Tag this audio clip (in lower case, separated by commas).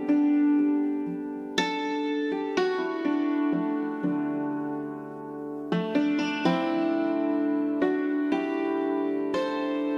zither, music